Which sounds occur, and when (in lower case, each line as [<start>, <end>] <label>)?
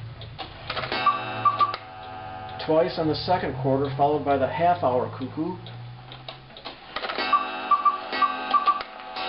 [0.00, 9.25] mechanisms
[0.16, 0.45] generic impact sounds
[0.16, 9.25] alarm clock
[1.65, 1.81] tick
[1.96, 2.08] tick-tock
[2.40, 2.52] tick-tock
[2.60, 5.61] man speaking
[3.77, 3.93] tick-tock
[4.23, 4.38] tick-tock
[4.71, 4.90] tick-tock
[5.14, 5.26] tick-tock
[5.59, 5.72] tick-tock
[6.04, 6.18] tick-tock
[6.23, 6.33] tick
[6.49, 6.70] generic impact sounds
[8.47, 8.84] tick